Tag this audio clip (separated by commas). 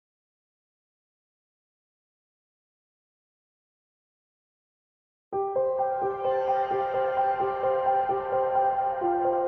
Silence, Music